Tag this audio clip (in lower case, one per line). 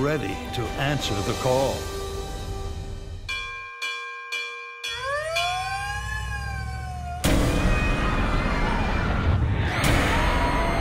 emergency vehicle
siren
police car (siren)